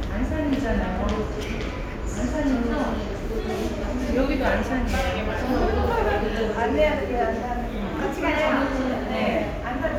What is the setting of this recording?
subway station